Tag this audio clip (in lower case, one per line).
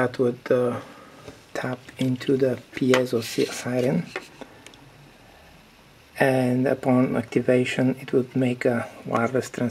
speech